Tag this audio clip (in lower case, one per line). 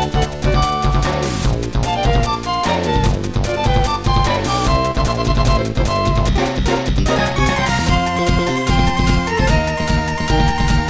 soundtrack music
music